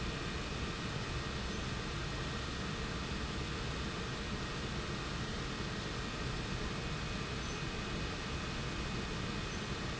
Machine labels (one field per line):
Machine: pump